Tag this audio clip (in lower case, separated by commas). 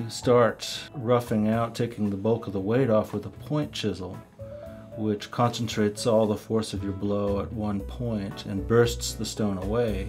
music, speech